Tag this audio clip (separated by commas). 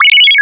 Ringtone, Alarm, Telephone